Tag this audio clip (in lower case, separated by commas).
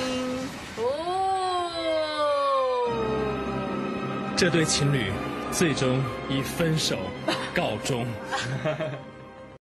speech, music, radio